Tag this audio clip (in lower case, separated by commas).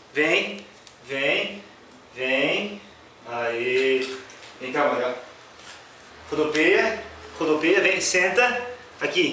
speech